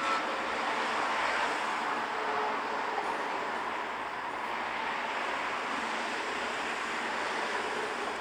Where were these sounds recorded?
on a street